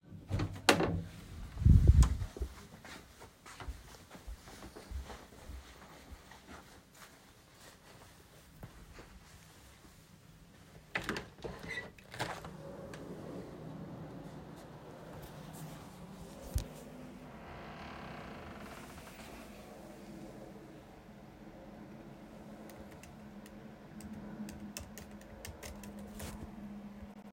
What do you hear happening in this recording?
I opened the bedroom door and walked to the window. Then I opened the window, sat down on my chair, and started typing on my MacBook.